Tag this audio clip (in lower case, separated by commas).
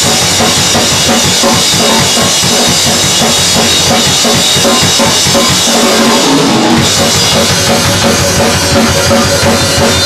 drum, musical instrument, music, bass drum, drum kit